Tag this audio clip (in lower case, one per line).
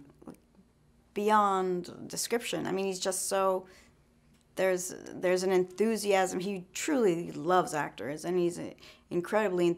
speech